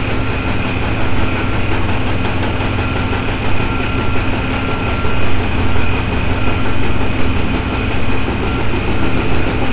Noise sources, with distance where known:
unidentified impact machinery

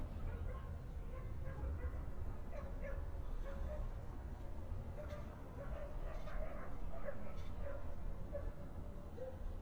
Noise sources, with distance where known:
dog barking or whining, far

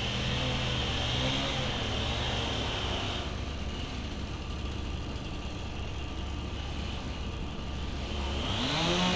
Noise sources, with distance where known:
unidentified powered saw, near

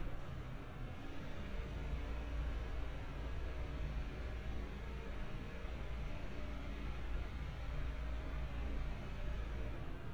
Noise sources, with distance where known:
engine of unclear size, far

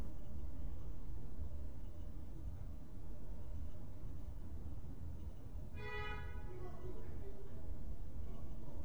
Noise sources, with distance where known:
car horn

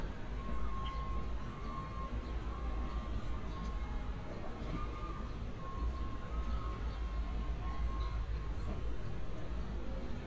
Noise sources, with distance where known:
reverse beeper, far

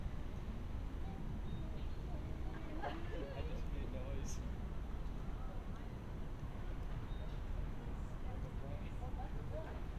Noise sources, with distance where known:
person or small group talking

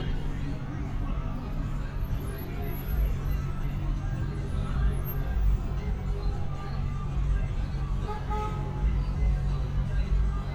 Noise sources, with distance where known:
medium-sounding engine, near
car horn, near
music from an unclear source, far
person or small group talking, far

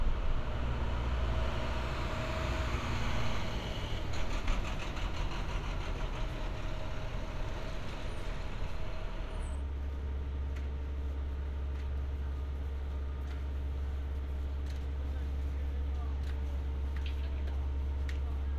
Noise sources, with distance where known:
unidentified impact machinery

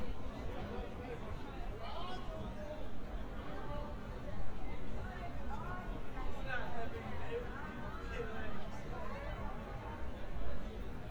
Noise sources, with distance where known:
unidentified human voice

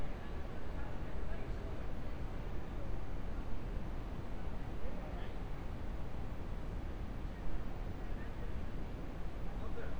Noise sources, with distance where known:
person or small group talking, far

